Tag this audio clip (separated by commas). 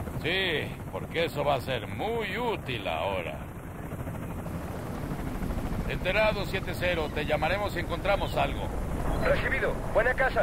Vehicle, Speech